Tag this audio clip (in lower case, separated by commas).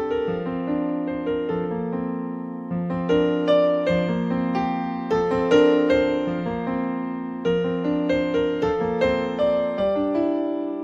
new-age music, music